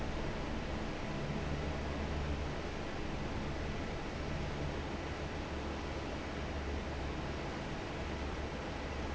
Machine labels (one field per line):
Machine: fan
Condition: normal